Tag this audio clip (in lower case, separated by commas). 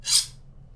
cutlery, home sounds